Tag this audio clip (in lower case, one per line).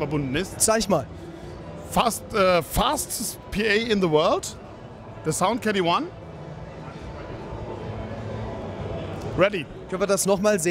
music
speech